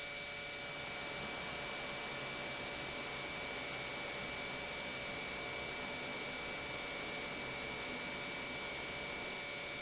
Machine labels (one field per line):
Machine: pump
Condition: normal